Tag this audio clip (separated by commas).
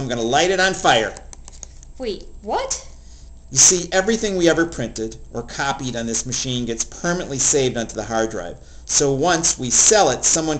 Speech